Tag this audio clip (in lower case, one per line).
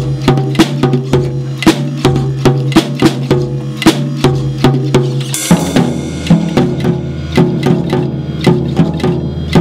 percussion
musical instrument
drum kit
drum
music